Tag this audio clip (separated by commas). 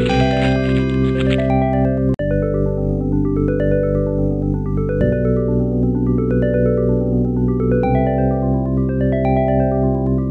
Music